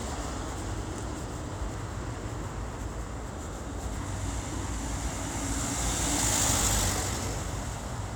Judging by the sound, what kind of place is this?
street